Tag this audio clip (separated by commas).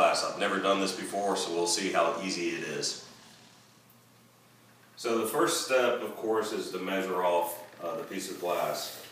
Speech